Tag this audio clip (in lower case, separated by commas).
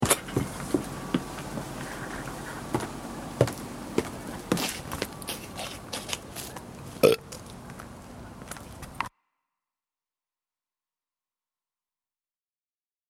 eructation